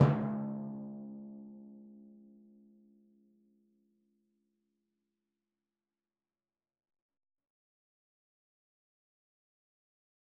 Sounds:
Drum, Musical instrument, Music, Percussion

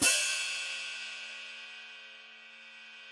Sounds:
Hi-hat, Music, Percussion, Cymbal, Musical instrument

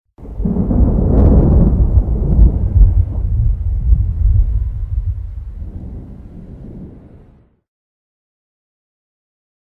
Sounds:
Thunder, Thunderstorm

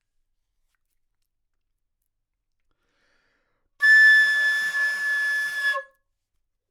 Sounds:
Music, Musical instrument, Wind instrument

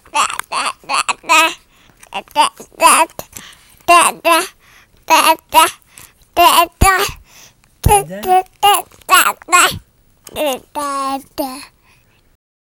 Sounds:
Speech, Human voice

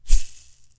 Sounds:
Music, Rattle (instrument), Musical instrument, Percussion

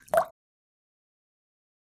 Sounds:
Liquid, Drip

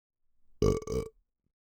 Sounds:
eructation

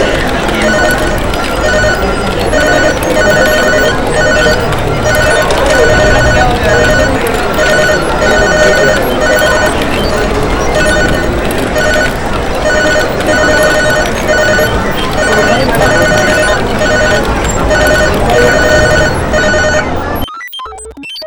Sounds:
Alarm, Telephone

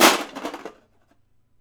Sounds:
Crushing

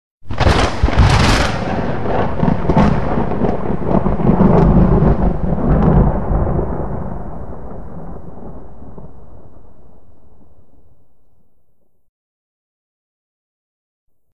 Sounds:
Thunderstorm, Thunder

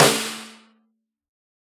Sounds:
Musical instrument, Music, Percussion, Snare drum, Drum

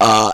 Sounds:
eructation

